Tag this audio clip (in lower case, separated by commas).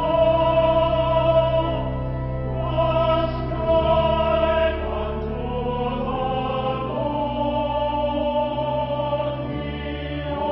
choir, music